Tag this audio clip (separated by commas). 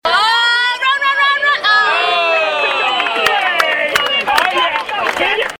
Cheering, Human group actions